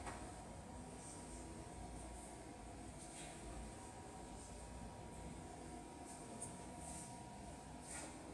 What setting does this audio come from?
subway station